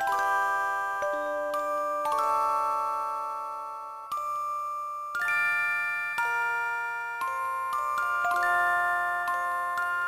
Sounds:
jingle (music)
music

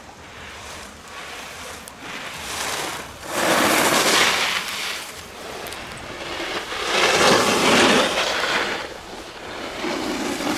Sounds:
skiing

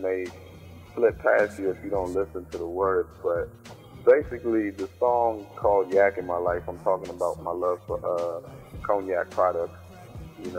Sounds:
speech
music

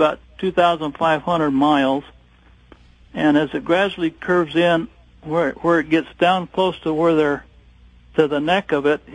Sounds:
speech

